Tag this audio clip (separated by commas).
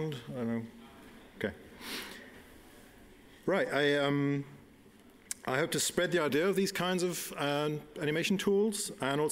Speech